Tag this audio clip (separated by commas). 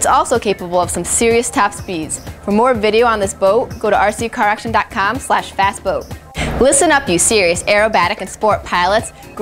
Music, Speech